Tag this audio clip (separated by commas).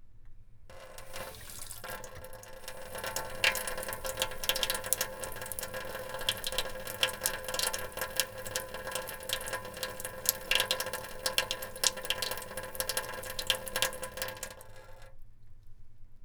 Sink (filling or washing), Domestic sounds, faucet